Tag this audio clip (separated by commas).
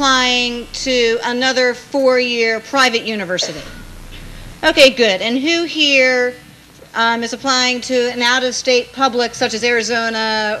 Speech